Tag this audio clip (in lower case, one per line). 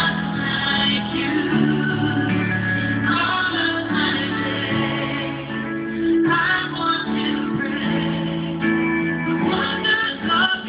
music